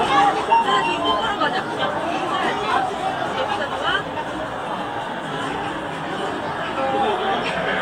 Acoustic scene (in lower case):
park